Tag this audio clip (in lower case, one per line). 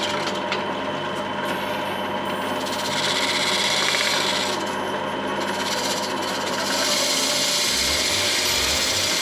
music
wood
inside a small room